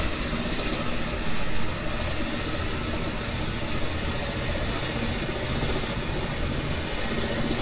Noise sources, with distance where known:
jackhammer, near

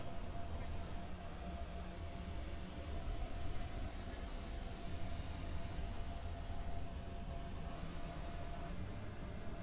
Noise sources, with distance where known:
background noise

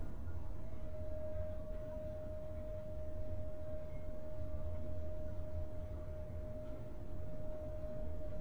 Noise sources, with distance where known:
background noise

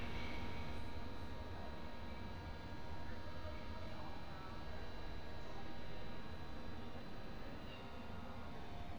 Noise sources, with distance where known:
unidentified human voice, far

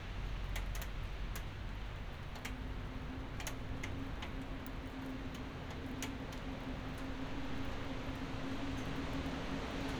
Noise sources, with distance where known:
engine of unclear size

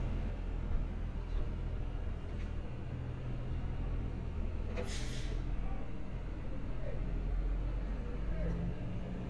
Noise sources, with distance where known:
engine of unclear size

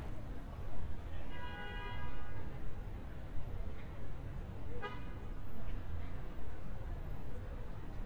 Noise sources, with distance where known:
car horn, far

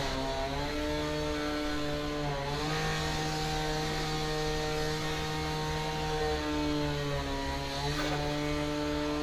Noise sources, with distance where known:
chainsaw

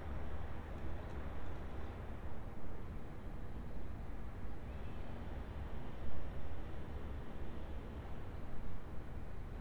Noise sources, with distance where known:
background noise

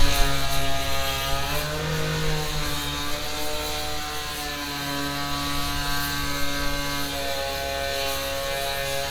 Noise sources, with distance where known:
chainsaw, near

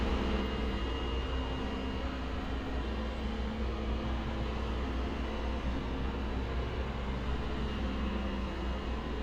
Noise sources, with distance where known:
large-sounding engine, near

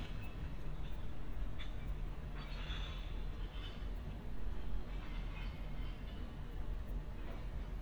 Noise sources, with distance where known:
non-machinery impact, far

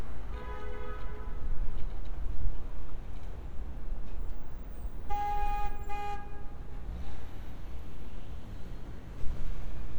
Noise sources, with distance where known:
medium-sounding engine, far; car horn

